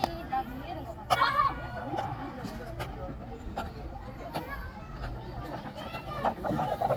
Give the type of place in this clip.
park